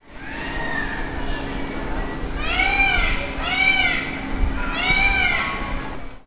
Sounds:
Wild animals, Bird, Animal

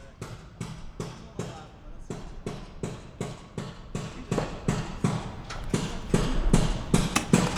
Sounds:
Hammer, Tools

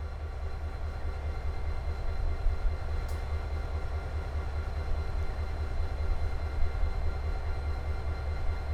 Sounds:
Engine, Rail transport, Vehicle, Train

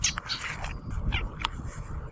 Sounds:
Animal, Frog, Wild animals

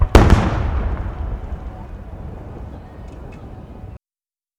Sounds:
Explosion, Fireworks

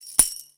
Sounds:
Percussion, Tambourine, Musical instrument, Music

